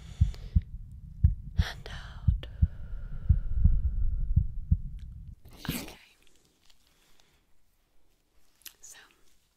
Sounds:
heart sounds

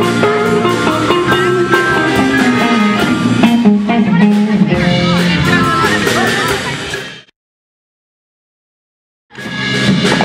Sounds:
Speech, Musical instrument, Music, Strum, Guitar, Electric guitar, Plucked string instrument, Acoustic guitar

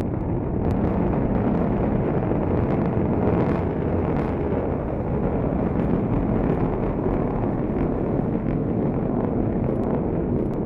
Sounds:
missile launch

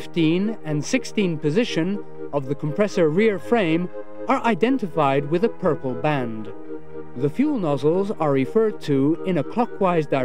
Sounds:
Music, Speech

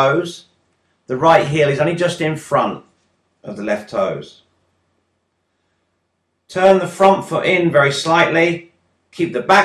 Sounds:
Speech

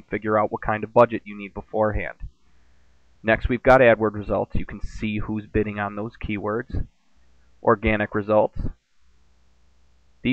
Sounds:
Speech

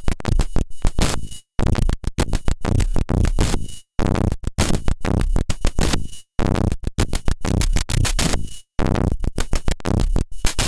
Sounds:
Drum machine, Music, Musical instrument

